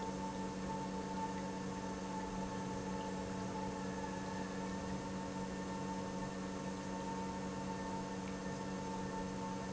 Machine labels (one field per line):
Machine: pump